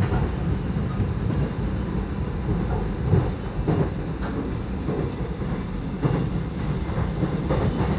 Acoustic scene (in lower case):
subway train